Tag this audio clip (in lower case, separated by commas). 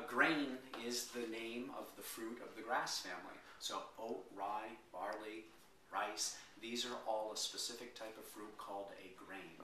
inside a small room, speech